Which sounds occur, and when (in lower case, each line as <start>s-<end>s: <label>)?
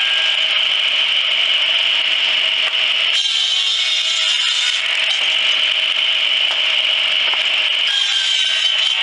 0.0s-9.0s: sawing
2.6s-2.8s: wood
5.0s-5.2s: wood
6.4s-6.6s: wood
7.2s-7.4s: wood